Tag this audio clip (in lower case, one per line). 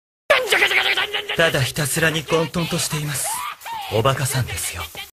speech